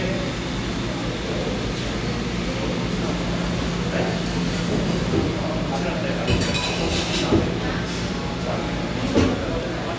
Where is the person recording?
in a cafe